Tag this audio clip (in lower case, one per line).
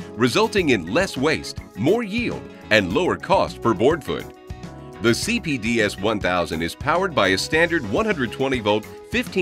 music
speech